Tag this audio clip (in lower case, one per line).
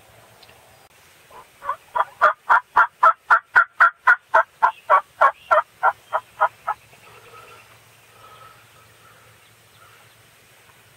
turkey
gobble
fowl